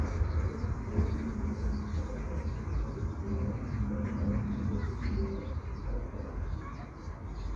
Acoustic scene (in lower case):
park